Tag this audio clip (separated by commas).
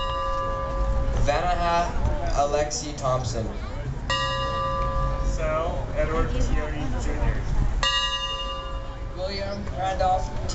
outside, urban or man-made, Speech